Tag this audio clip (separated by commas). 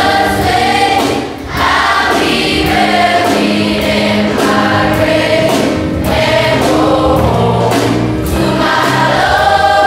singing choir